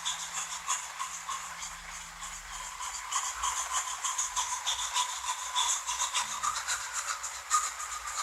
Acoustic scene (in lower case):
restroom